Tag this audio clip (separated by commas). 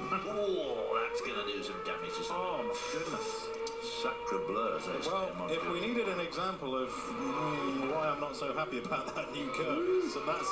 Vehicle, Motor vehicle (road), Speech